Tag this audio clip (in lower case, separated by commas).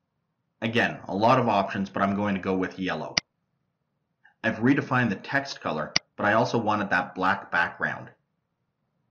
speech, narration